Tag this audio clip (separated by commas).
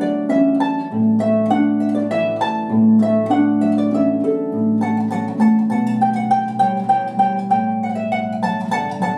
New-age music, Music